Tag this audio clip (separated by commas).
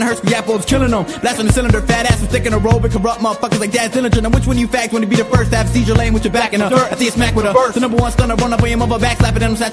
Music